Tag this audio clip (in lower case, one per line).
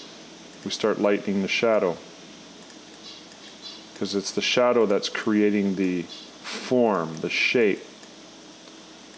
speech